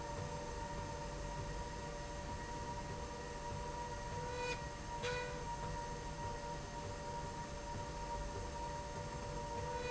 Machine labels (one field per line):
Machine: slide rail